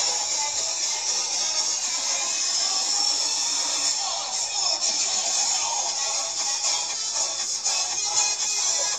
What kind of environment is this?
car